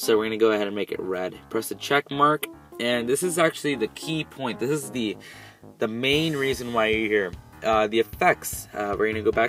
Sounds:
music, speech

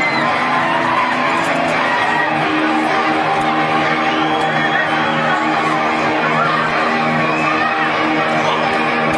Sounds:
cheering, crowd

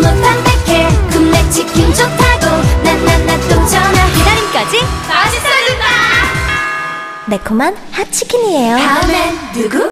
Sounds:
music, speech

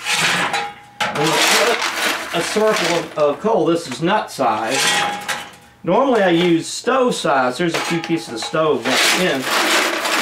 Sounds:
inside a large room or hall, speech

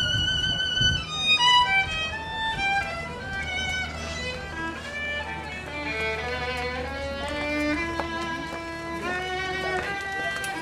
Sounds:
music, violin, musical instrument

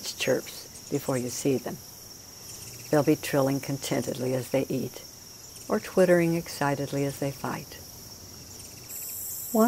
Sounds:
speech, outside, rural or natural, bird

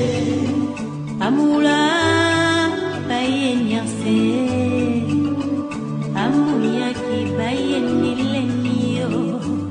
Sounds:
music

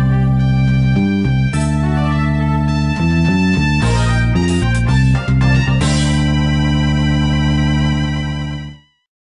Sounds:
video game music, music

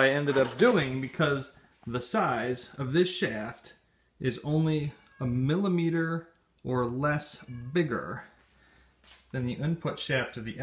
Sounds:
speech

